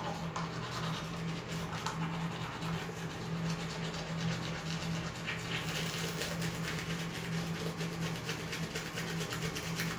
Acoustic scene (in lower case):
restroom